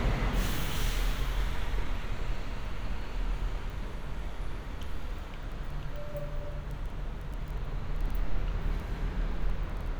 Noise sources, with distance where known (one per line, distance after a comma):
large-sounding engine, near